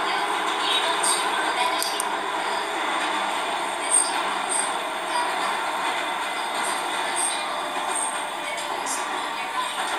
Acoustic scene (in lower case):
subway train